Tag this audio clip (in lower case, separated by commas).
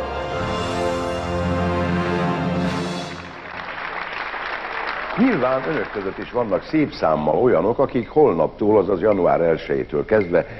music, speech